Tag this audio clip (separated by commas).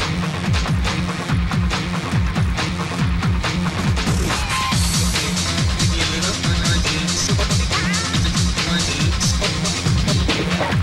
Sound effect, Music